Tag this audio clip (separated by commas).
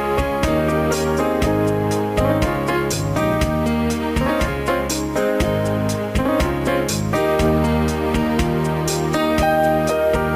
Keyboard (musical), Piano, Electric piano